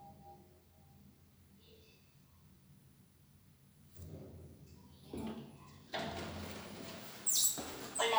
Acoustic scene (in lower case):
elevator